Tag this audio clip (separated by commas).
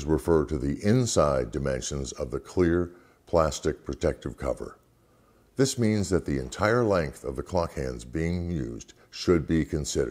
Speech